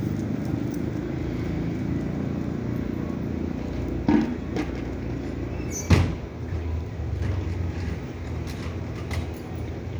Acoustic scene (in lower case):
residential area